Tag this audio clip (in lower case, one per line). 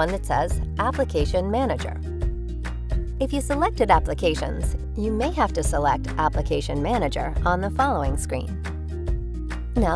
music
speech